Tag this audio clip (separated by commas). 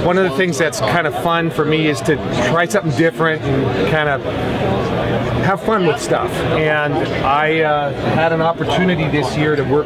Speech